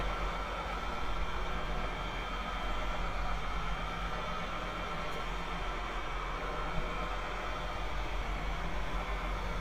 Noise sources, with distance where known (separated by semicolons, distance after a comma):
large-sounding engine, near